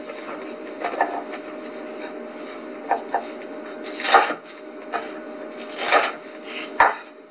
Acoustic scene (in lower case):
kitchen